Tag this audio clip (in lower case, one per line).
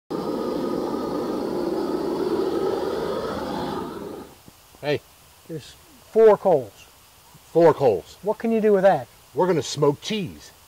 outside, rural or natural
speech